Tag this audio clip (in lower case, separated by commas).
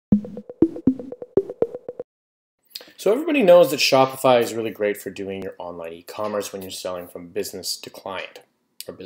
speech, music